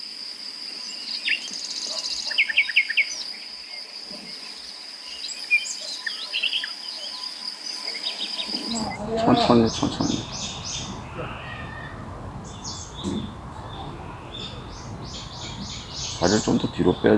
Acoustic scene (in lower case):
park